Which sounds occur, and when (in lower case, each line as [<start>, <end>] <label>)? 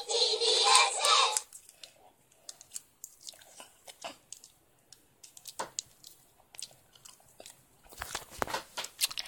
[0.00, 1.40] children shouting
[0.00, 9.25] background noise
[1.32, 1.52] tick
[1.65, 1.87] tick
[1.89, 2.65] surface contact
[2.27, 2.46] tick
[2.56, 2.79] tick
[2.99, 3.64] generic impact sounds
[3.84, 4.16] generic impact sounds
[4.29, 4.49] generic impact sounds
[4.85, 4.98] tick
[5.20, 5.51] generic impact sounds
[5.58, 5.74] tap
[5.72, 5.82] tick
[6.01, 6.17] generic impact sounds
[6.50, 6.72] generic impact sounds
[6.92, 7.22] generic impact sounds
[7.37, 7.54] generic impact sounds
[7.80, 8.21] generic impact sounds
[8.32, 8.62] generic impact sounds
[8.74, 8.84] generic impact sounds
[8.97, 9.25] generic impact sounds